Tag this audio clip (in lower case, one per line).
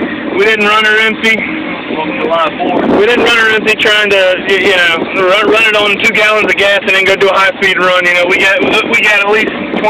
vehicle
speech